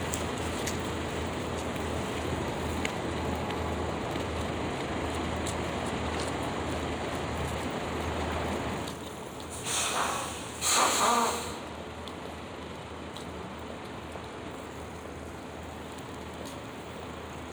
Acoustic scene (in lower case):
street